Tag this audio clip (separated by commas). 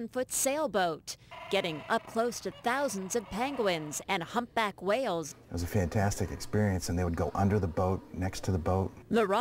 Speech